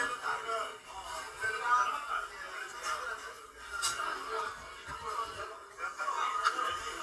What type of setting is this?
crowded indoor space